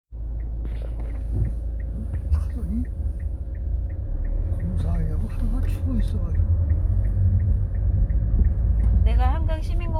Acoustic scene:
car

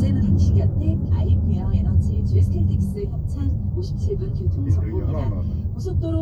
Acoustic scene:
car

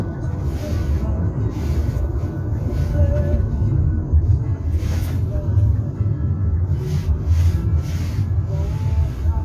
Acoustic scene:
car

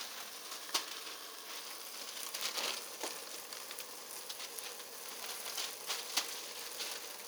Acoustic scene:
kitchen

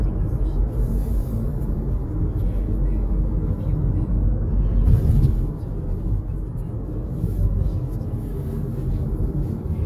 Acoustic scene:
car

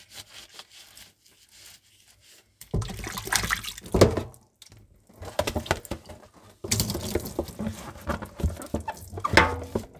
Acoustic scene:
kitchen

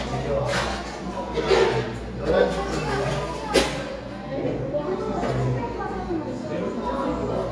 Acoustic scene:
cafe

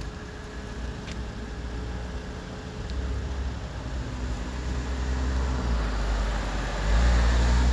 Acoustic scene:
street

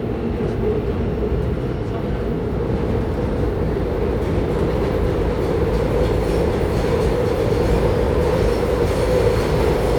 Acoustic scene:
subway train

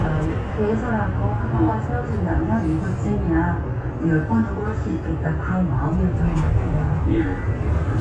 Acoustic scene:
bus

